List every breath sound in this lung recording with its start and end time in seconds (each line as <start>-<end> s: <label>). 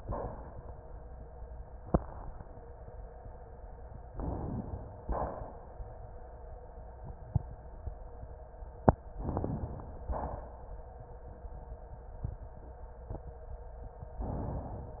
4.13-5.05 s: inhalation
5.06-5.77 s: exhalation
9.17-10.09 s: inhalation
9.17-10.09 s: crackles
10.08-10.82 s: exhalation